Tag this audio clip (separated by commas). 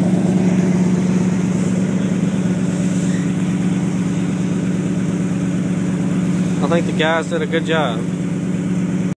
Car, Speech, Vehicle